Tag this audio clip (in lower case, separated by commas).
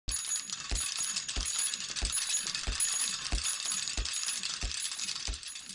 bicycle, vehicle